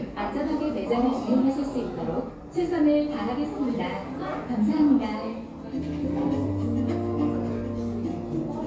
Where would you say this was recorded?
in a cafe